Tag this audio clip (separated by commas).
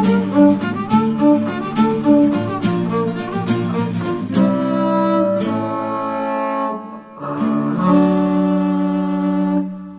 playing double bass